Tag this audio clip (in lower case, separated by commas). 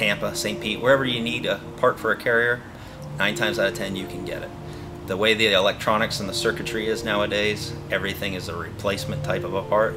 music, speech